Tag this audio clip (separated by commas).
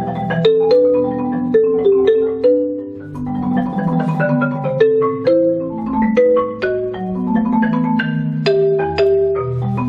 Music, xylophone, Marimba